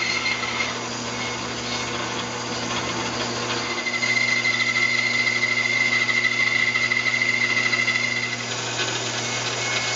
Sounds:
inside a large room or hall, Wood

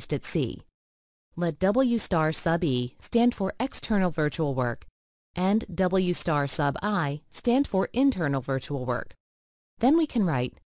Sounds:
Speech

